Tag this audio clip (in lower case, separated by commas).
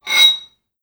home sounds, cutlery